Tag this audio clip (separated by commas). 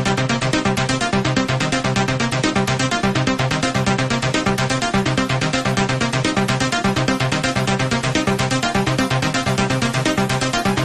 Electronic dance music, Music